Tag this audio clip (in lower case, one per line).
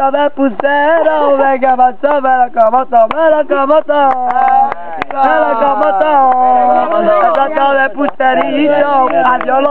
speech